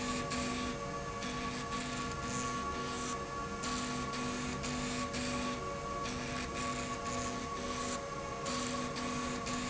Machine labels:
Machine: slide rail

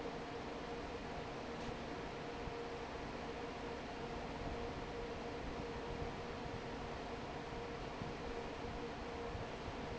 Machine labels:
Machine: fan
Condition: normal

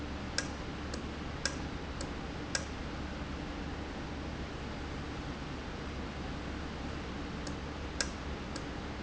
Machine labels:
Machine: valve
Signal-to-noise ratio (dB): -6 dB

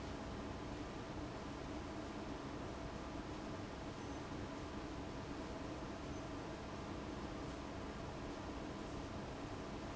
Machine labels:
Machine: fan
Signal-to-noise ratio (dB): 6 dB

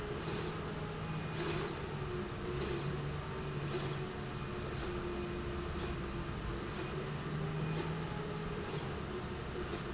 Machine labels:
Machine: slide rail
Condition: normal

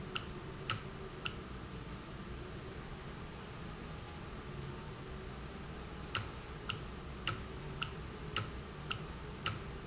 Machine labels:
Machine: valve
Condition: normal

